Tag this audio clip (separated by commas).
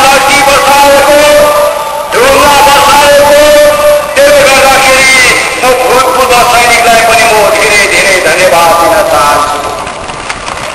Speech, monologue, man speaking